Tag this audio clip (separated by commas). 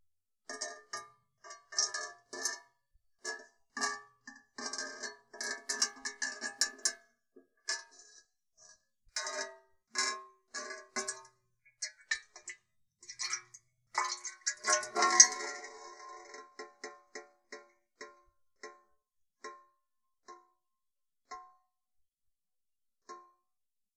clink, Glass, dribble, home sounds, Drip, Pour, Liquid